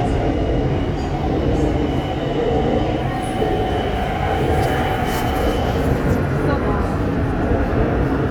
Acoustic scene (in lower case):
subway train